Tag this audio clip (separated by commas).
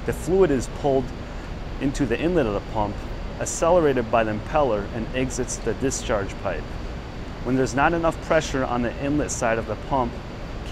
Speech